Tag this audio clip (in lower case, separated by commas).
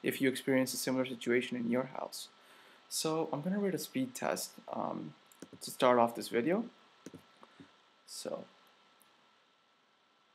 speech